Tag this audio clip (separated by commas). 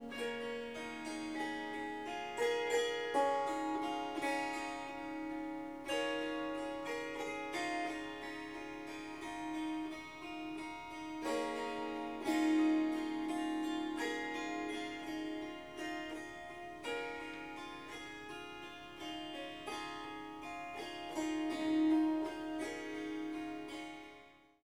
Musical instrument, Harp, Music